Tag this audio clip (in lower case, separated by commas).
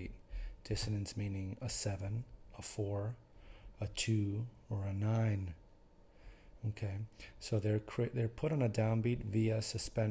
speech